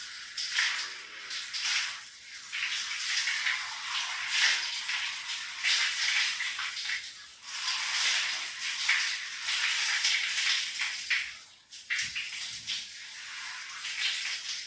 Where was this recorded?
in a restroom